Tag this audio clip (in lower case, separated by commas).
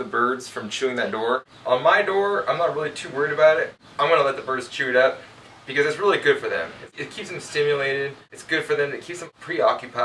speech